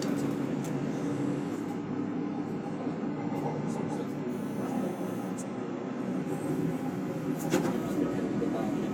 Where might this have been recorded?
on a subway train